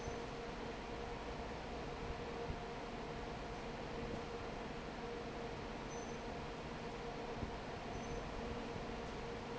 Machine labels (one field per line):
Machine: fan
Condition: normal